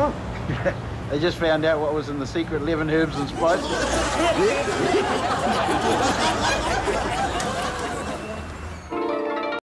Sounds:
speech

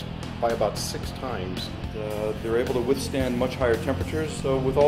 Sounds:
speech, music

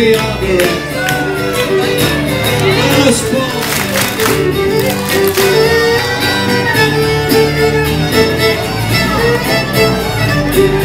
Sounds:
speech, music

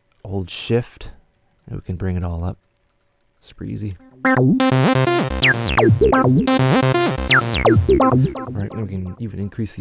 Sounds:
music, speech

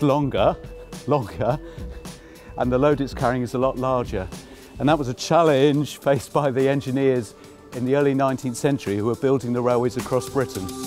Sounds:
speech, music

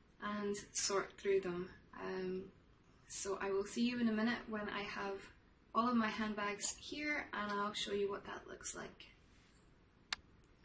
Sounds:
speech

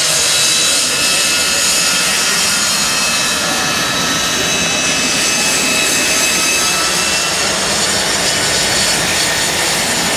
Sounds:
aircraft engine, vehicle, speech, airplane

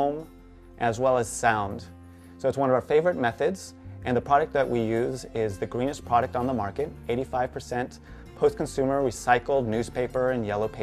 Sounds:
speech, music

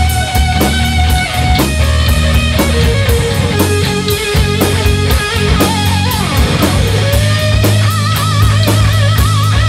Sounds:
guitar, musical instrument, rock and roll, music, bass guitar, electric guitar, plucked string instrument

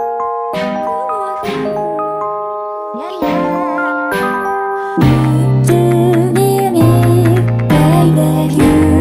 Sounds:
rhythm and blues, music

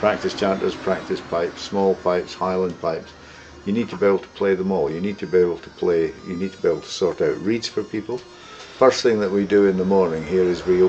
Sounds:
speech, music, bagpipes

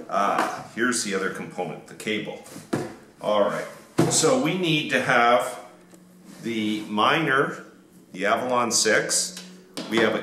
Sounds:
inside a small room, speech

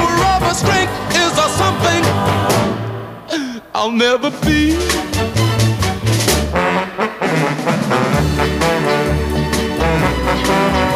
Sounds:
swing music, trombone, music

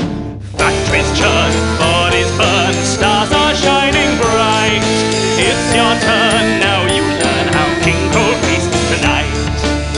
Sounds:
music

